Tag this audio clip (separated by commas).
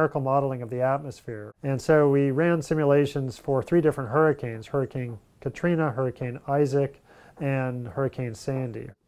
Speech